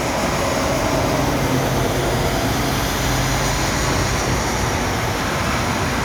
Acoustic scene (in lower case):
street